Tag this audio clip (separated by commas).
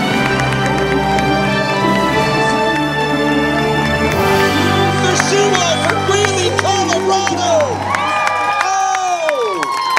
Speech, Crowd, Music, outside, urban or man-made